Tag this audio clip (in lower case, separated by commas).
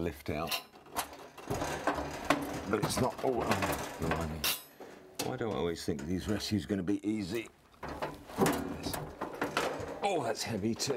inside a small room, speech